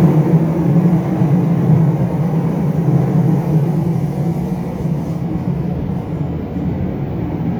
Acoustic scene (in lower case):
subway train